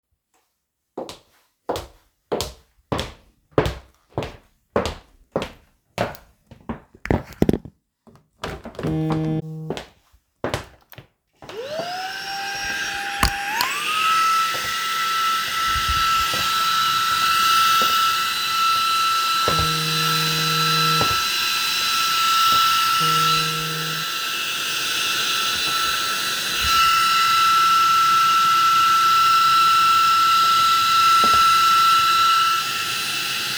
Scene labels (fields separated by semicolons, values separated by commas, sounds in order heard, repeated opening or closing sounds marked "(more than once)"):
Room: living room; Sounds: footsteps, phone ringing, vacuum cleaner